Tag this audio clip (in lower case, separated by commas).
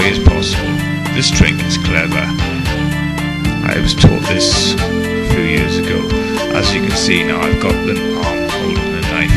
speech, music